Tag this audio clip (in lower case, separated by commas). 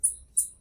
wild animals, animal